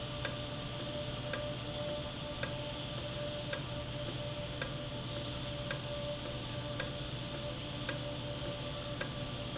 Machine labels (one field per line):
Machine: valve